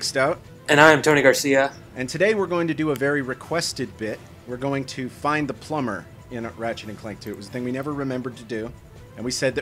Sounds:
speech, music

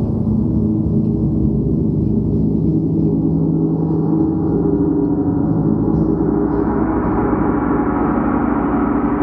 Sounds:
playing gong

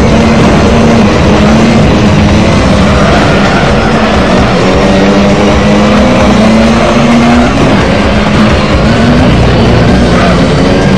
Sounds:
vehicle, motor vehicle (road), car, car passing by

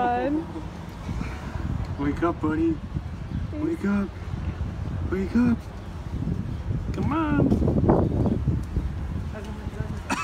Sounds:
speech

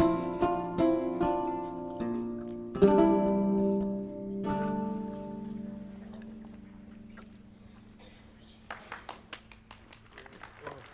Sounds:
pizzicato

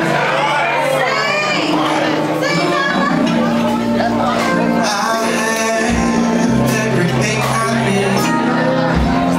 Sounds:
male singing, music, speech

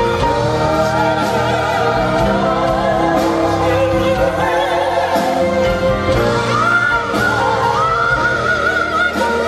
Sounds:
gospel music, music

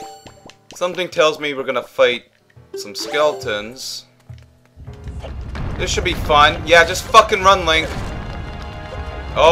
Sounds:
speech, music

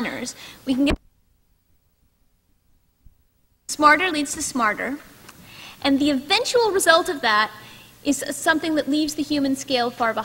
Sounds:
speech

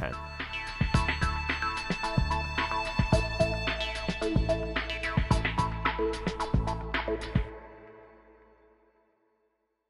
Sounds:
music

